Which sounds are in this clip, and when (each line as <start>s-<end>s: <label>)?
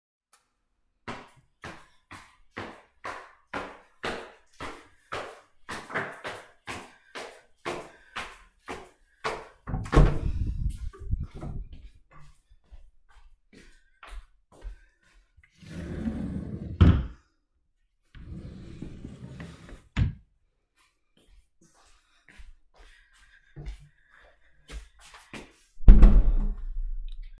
0.3s-0.7s: light switch
1.0s-9.5s: footsteps
9.7s-11.9s: door
10.8s-15.5s: footsteps
15.6s-20.2s: wardrobe or drawer
20.7s-25.7s: footsteps
25.8s-26.8s: door